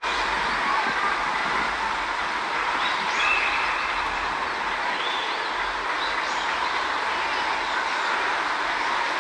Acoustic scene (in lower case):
park